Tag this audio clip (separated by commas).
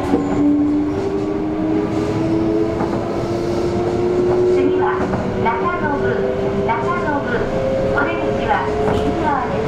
Speech